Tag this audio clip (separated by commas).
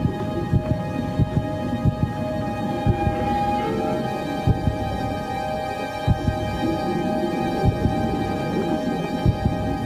Music